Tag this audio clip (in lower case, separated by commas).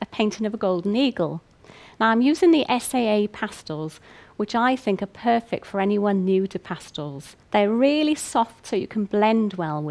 speech